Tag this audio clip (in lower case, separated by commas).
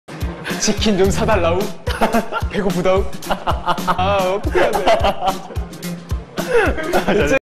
music, speech